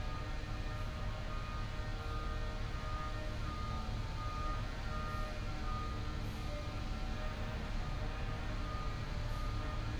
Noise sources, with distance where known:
large-sounding engine; unidentified powered saw; reverse beeper

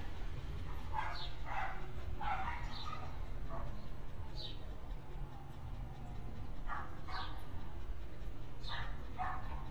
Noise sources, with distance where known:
dog barking or whining, far

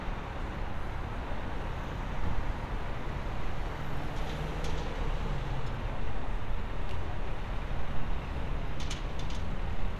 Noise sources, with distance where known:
medium-sounding engine, near

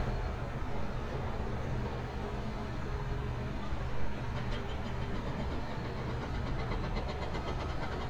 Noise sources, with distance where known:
hoe ram

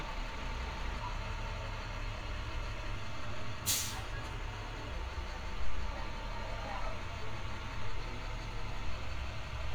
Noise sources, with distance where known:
large-sounding engine, near

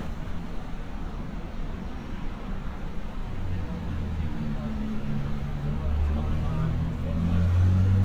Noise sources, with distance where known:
medium-sounding engine, far

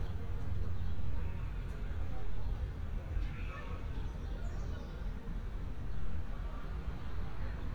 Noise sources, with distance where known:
person or small group talking, far

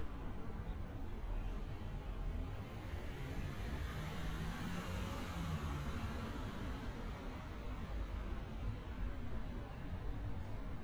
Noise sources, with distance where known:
medium-sounding engine, near

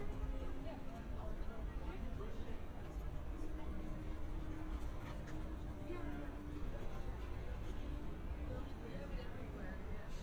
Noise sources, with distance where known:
person or small group talking, near

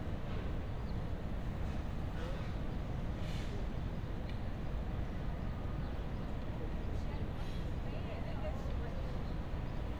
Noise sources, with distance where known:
person or small group talking, near

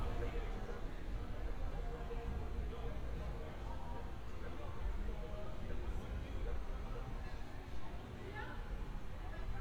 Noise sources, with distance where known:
person or small group shouting, far

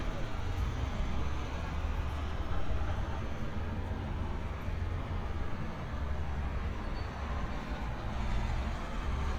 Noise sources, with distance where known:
engine of unclear size

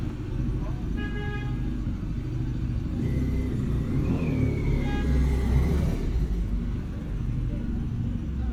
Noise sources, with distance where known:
medium-sounding engine, near; car horn, near; person or small group talking

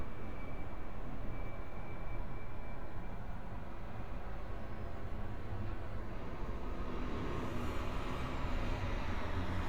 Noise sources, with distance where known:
engine of unclear size

